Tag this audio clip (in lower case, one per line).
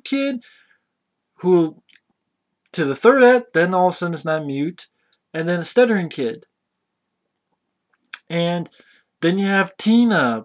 speech
inside a small room